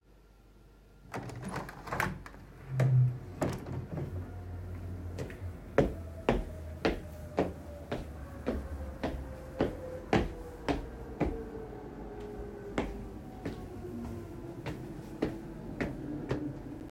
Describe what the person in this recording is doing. I walked across the bedroom and opened the window.